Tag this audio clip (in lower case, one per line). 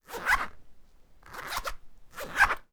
domestic sounds
zipper (clothing)